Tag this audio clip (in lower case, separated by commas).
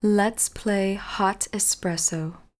human voice, speech, female speech